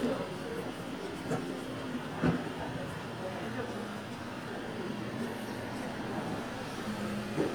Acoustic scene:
street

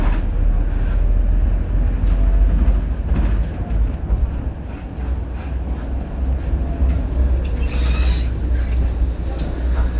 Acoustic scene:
bus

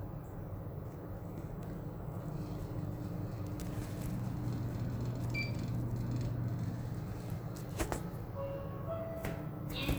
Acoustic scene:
elevator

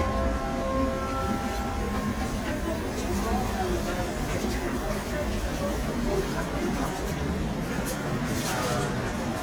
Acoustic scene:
subway train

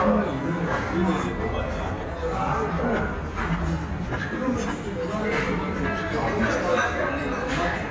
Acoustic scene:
crowded indoor space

